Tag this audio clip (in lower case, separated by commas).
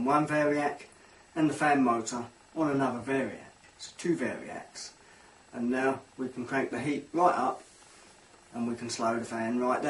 speech